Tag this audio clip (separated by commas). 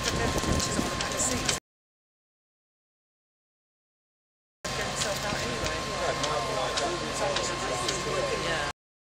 Speech